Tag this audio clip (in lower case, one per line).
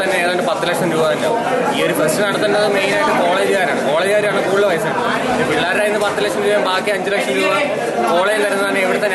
speech